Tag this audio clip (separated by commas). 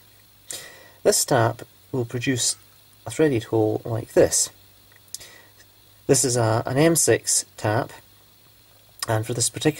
Speech